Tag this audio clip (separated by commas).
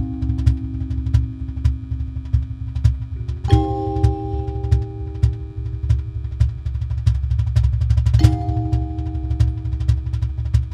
Percussion, Wood block